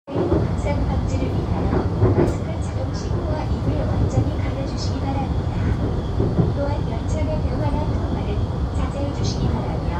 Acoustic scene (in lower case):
subway train